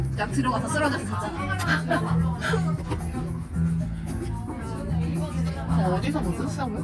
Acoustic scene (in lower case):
crowded indoor space